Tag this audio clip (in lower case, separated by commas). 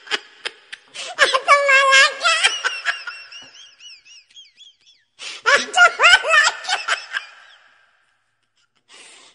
people giggling